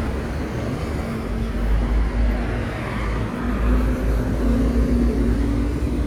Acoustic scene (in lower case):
street